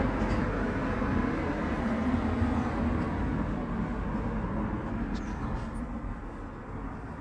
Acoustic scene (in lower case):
residential area